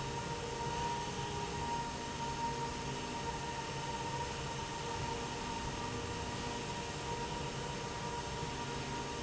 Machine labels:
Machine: slide rail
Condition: normal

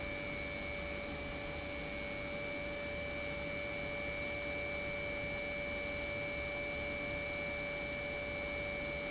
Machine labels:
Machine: pump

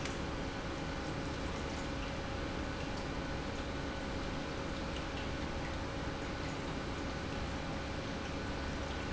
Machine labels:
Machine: pump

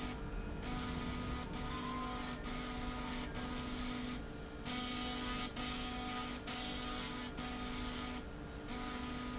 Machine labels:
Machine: slide rail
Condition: abnormal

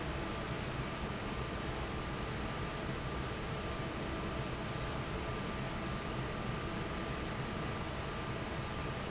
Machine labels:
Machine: fan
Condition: normal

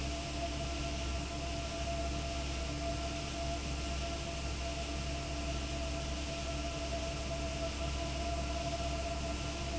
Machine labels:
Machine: fan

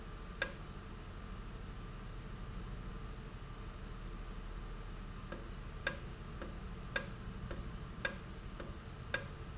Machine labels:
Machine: valve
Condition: normal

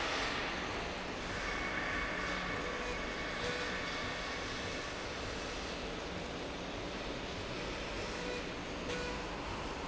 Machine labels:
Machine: slide rail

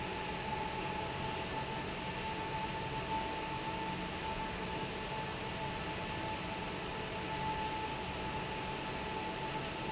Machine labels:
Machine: fan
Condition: normal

